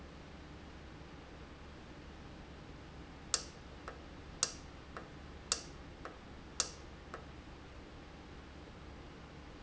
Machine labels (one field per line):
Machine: valve